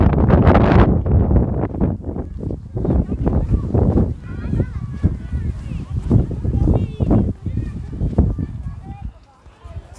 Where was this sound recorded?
in a park